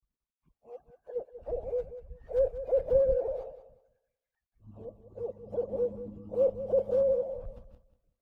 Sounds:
Animal, Wild animals, Bird

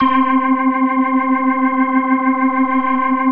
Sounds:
Music, Musical instrument, Organ, Keyboard (musical)

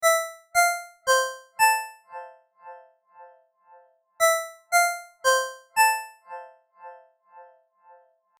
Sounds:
Telephone, Alarm, Ringtone

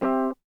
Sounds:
Musical instrument, Music, Guitar, Plucked string instrument

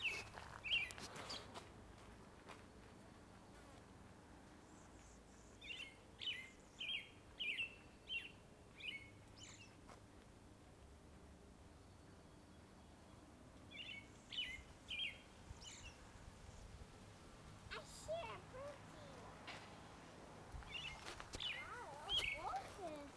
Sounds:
Animal, Bird vocalization, Wild animals, Bird

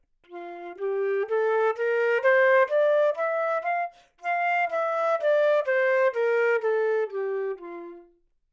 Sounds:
Music, Wind instrument, Musical instrument

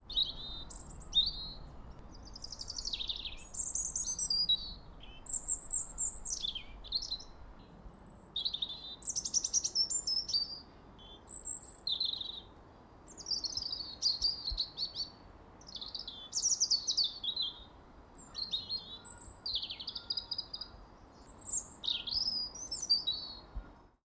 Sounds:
Bird vocalization, tweet, Wild animals, Bird, Animal

